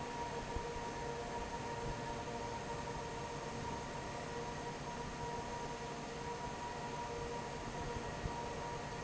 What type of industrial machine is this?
fan